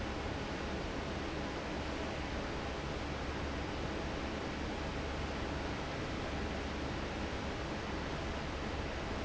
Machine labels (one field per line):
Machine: fan